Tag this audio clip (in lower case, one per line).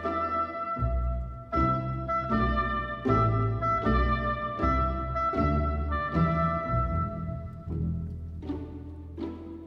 music